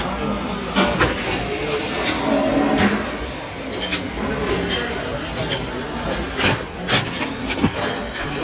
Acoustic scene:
restaurant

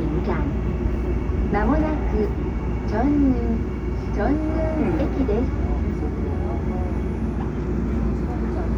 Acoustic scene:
subway train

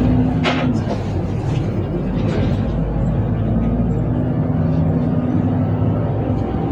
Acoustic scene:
bus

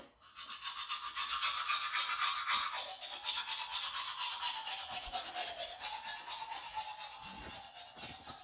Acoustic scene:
restroom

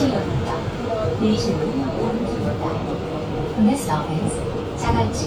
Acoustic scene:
subway train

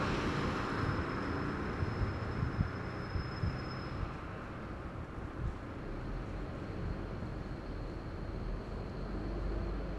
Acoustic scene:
street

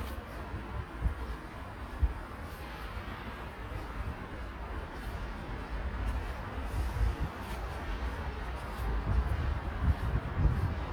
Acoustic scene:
residential area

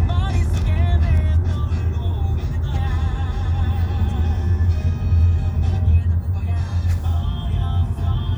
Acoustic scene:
car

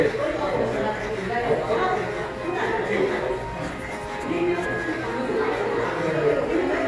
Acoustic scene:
crowded indoor space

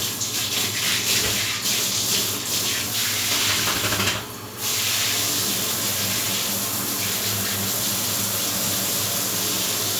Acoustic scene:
restroom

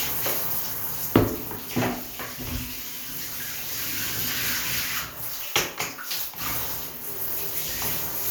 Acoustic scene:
restroom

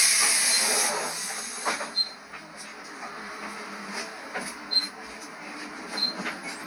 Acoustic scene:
bus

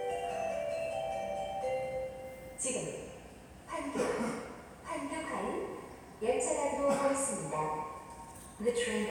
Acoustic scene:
subway station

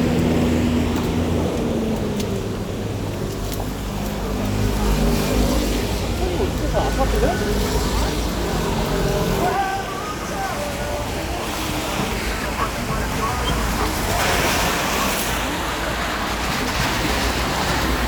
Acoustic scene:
street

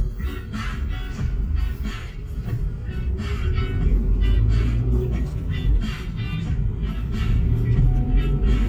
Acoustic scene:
car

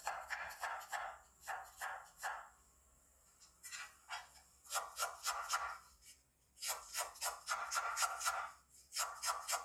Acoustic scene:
kitchen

